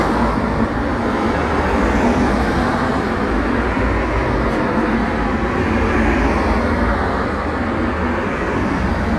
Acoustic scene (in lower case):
street